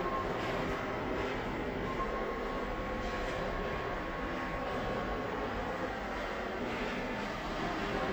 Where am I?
in a subway station